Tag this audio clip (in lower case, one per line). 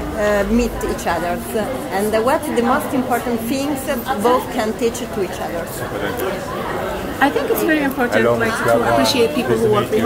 speech